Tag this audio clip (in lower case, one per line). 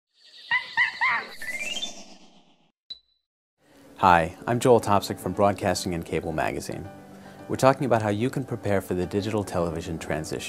speech
music